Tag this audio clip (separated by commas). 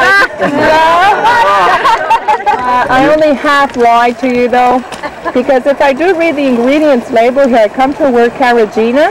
Chatter, Speech, outside, rural or natural